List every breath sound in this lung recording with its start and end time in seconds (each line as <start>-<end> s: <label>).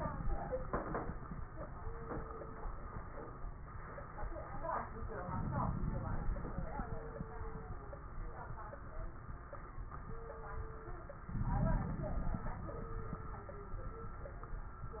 5.27-6.40 s: inhalation
5.27-6.40 s: crackles
11.34-12.56 s: inhalation
11.34-12.56 s: crackles